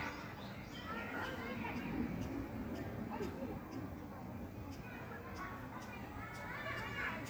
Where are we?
in a park